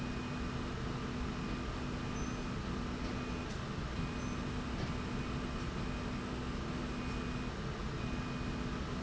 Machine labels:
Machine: slide rail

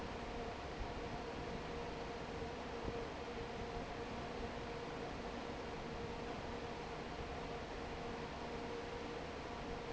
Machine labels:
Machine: fan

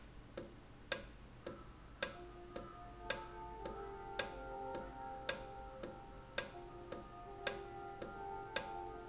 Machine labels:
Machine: valve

